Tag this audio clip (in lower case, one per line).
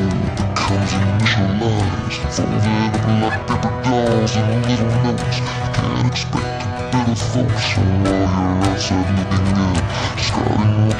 music